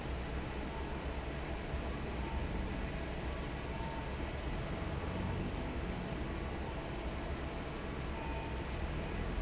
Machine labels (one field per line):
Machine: fan